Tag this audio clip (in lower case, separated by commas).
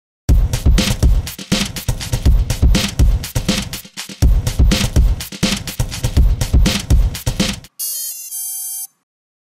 music